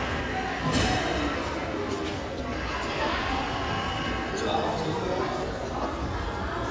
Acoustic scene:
crowded indoor space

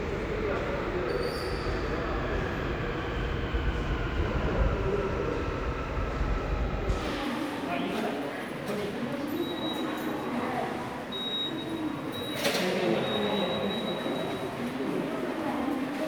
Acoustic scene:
subway station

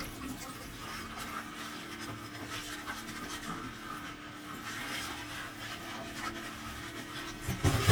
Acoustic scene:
kitchen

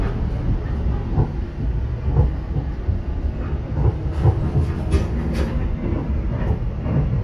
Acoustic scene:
subway train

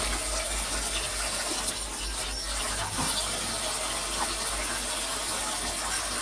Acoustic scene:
kitchen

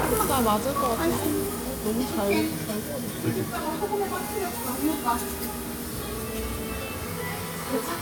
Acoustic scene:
restaurant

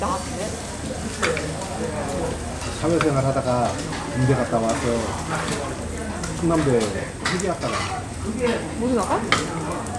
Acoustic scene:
restaurant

